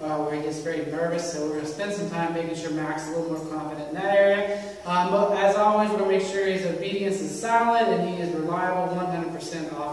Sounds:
speech

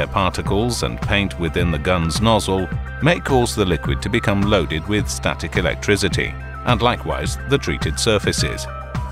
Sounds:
speech

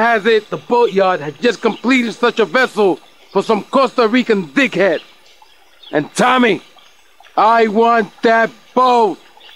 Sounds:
speech

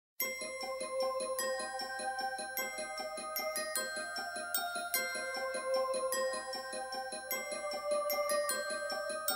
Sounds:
glockenspiel, music

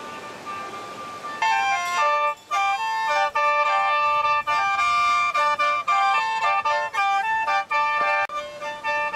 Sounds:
music, speech

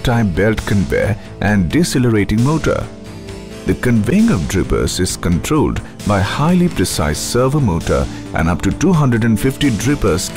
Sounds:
speech, music

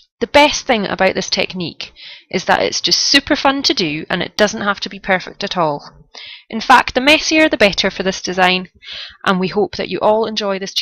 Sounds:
speech

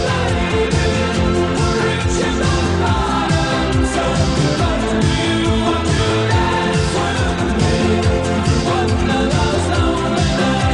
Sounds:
music

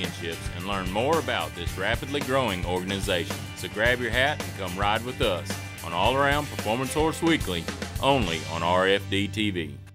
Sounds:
speech, music

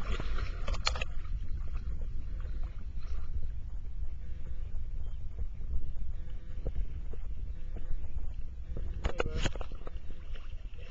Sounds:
speech

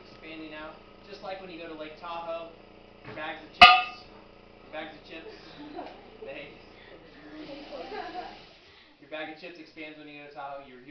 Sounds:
speech

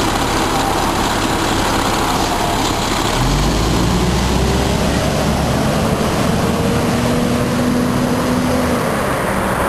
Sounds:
bus, vehicle

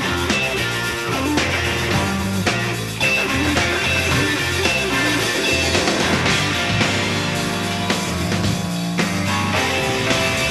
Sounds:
music, roll

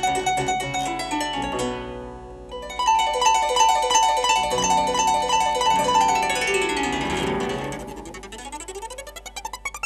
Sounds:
pizzicato, playing harp, harp

